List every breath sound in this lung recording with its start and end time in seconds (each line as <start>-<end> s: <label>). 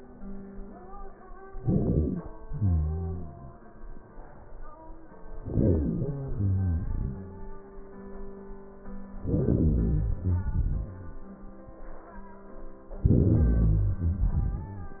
1.49-2.45 s: crackles
1.50-2.47 s: inhalation
2.48-3.77 s: exhalation
5.29-6.08 s: crackles
5.32-6.08 s: inhalation
6.09-7.68 s: exhalation
9.12-10.10 s: crackles
9.18-10.12 s: inhalation
10.10-11.33 s: exhalation
13.00-13.98 s: crackles
13.01-13.97 s: inhalation
14.00-15.00 s: exhalation